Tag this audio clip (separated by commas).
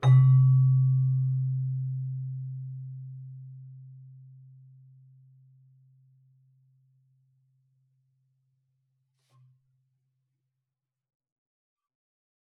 Music, Keyboard (musical), Musical instrument